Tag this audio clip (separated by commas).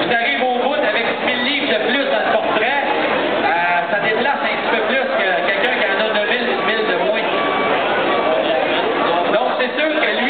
Speech